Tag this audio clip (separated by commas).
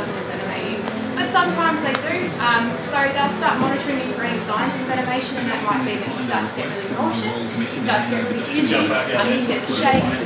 inside a large room or hall, Speech